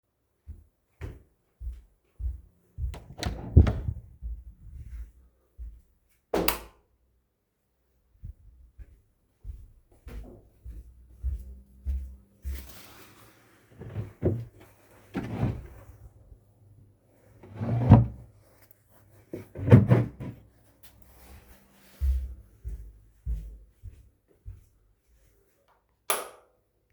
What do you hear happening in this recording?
I walked down the hallway, opened and closed the door, opened and closed the wardrobe twice, while looking for clothes, and walked throught the hallway again. Finally, I turned off the light.